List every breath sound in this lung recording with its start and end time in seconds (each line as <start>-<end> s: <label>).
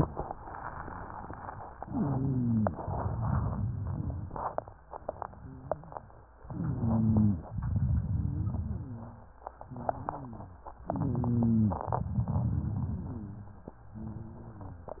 1.84-2.77 s: inhalation
1.84-2.77 s: rhonchi
2.79-4.55 s: exhalation
2.79-4.55 s: crackles
6.41-7.44 s: inhalation
6.41-7.44 s: rhonchi
7.53-9.30 s: exhalation
7.53-9.30 s: crackles
9.64-10.66 s: rhonchi
10.85-11.88 s: inhalation
10.85-11.88 s: rhonchi
11.88-13.66 s: exhalation
11.88-13.66 s: crackles
12.94-15.00 s: rhonchi